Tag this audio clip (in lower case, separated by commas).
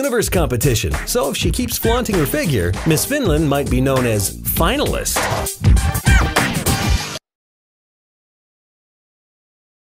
music, speech